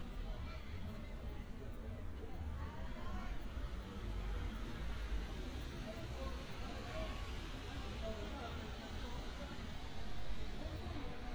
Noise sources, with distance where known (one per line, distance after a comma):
medium-sounding engine
person or small group talking, far